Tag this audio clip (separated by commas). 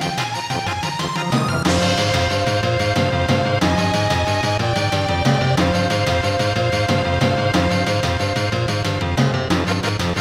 Music, Video game music